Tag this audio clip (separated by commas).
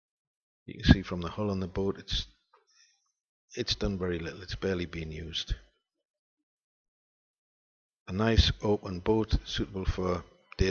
Speech